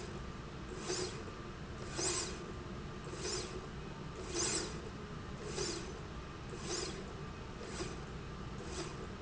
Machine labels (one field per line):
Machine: slide rail